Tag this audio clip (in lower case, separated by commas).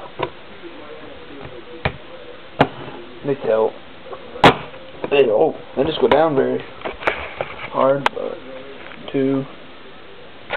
speech